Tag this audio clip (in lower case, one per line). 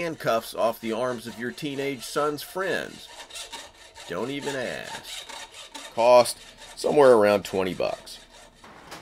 speech
inside a small room
tools